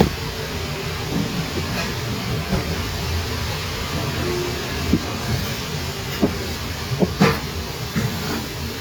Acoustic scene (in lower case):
kitchen